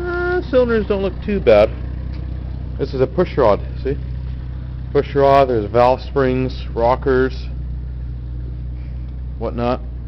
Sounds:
speech, idling, engine

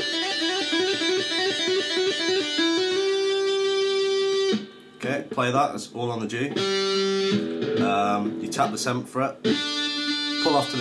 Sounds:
tapping guitar

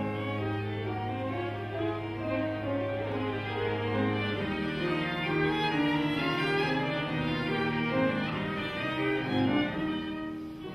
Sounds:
music, cello, piano, musical instrument, violin, classical music, orchestra, bowed string instrument

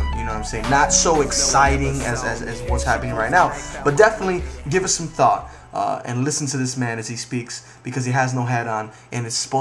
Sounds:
music, speech

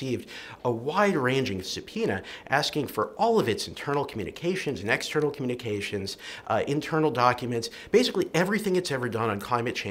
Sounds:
man speaking, speech, monologue

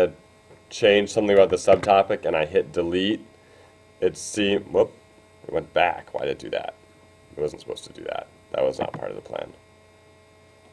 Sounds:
hum, mains hum

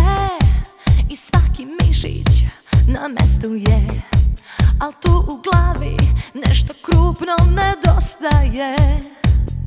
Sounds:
music

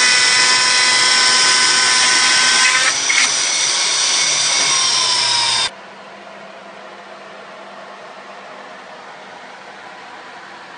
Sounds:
wood

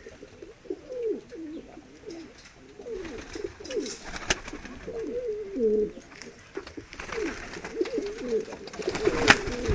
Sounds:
inside a small room, dove, bird

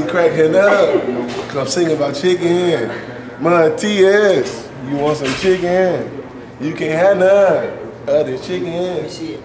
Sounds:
speech

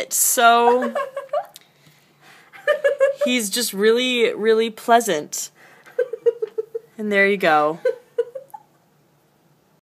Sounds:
speech

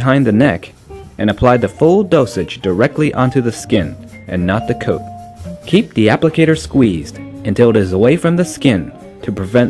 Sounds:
music, speech

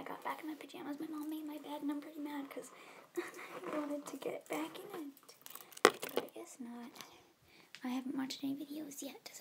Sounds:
speech

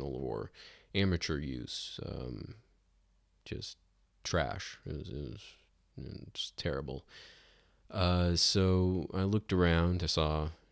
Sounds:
speech

